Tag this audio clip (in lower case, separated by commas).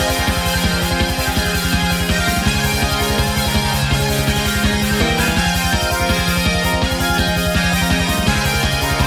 music